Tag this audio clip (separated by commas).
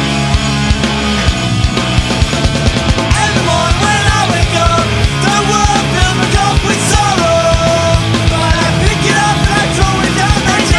New-age music, Music